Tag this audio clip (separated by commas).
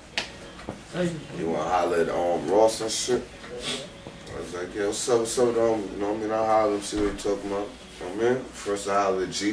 Speech